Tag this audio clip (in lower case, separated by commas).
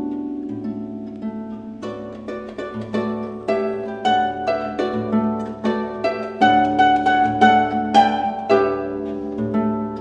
harp, pizzicato, playing harp